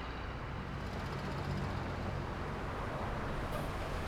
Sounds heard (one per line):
car wheels rolling
car engine accelerating
car
bus compressor
bus
bus engine idling